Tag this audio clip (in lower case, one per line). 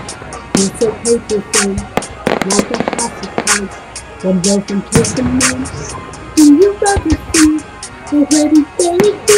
singing
fireworks
music